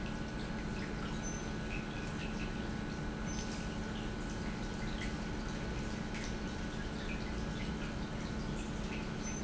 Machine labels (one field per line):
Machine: pump